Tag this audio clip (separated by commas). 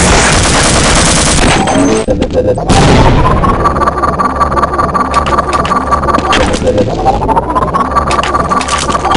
Music